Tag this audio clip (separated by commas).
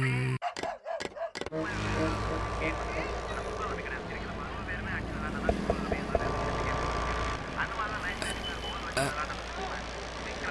Burping